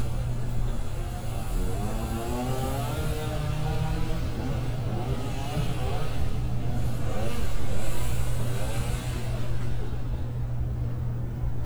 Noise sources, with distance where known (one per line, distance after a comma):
medium-sounding engine
chainsaw, near